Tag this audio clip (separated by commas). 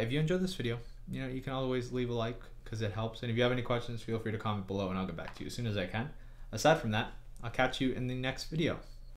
Speech